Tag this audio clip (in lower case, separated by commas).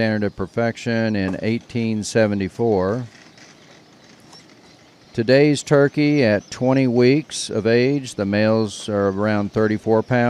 speech, bird